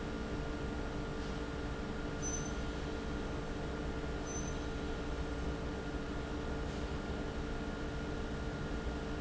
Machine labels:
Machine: fan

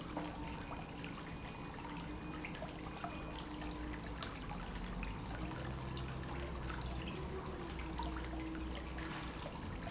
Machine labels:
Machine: pump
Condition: normal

